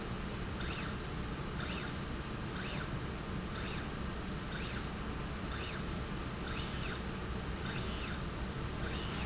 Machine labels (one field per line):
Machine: slide rail